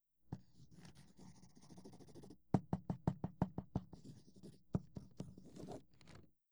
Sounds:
home sounds, writing

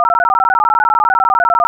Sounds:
alarm, telephone

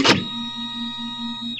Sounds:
mechanisms, printer

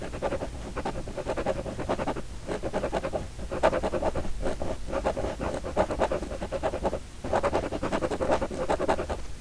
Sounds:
writing, home sounds

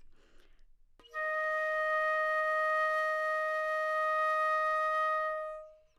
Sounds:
musical instrument, wind instrument, music

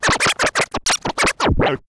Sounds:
music, musical instrument, scratching (performance technique)

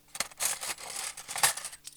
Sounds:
cutlery, domestic sounds

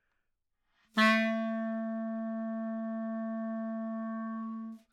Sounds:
music, musical instrument, wind instrument

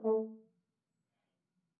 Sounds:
musical instrument, music, brass instrument

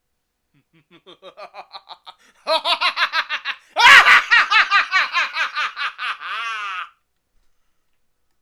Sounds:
laughter, human voice

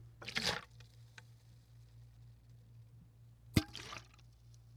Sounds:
splatter, liquid

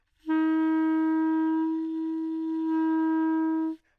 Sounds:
musical instrument, music, wind instrument

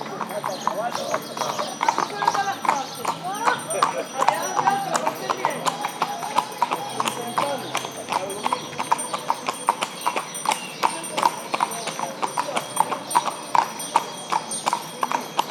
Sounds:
animal, livestock

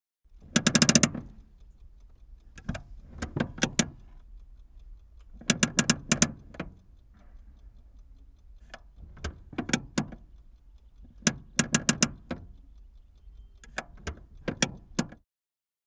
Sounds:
vehicle, motor vehicle (road)

